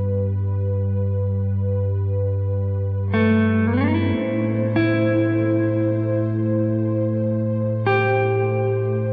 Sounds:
Music, Echo

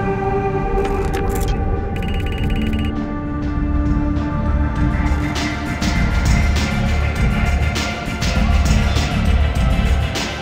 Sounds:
Music

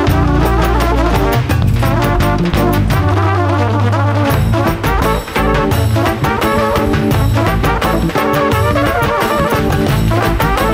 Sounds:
Music, Brass instrument, Trumpet, Musical instrument

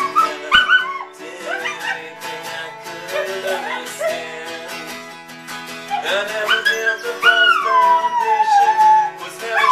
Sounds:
Animal, Howl, Dog, Domestic animals, Music

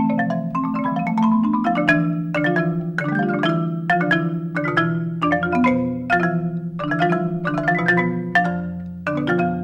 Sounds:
xylophone, Music, playing marimba

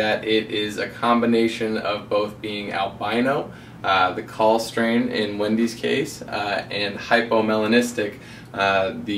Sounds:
Speech

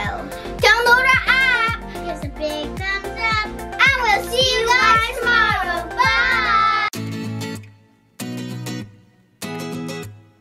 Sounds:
children shouting

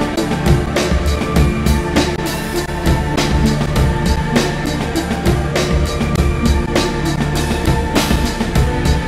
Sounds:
Water vehicle, Music, Vehicle

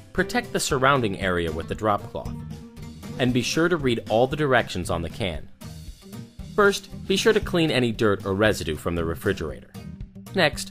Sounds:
Music, Speech

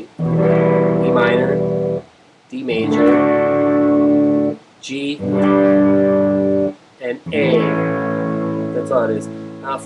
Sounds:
Speech, Music

